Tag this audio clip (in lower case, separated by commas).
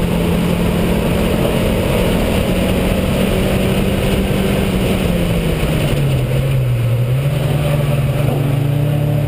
car, motor vehicle (road), vehicle